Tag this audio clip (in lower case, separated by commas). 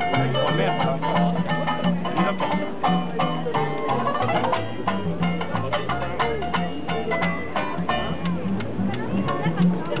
folk music, music, speech